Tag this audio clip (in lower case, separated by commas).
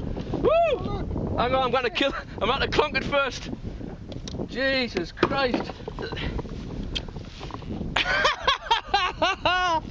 rowboat, speech, vehicle, water vehicle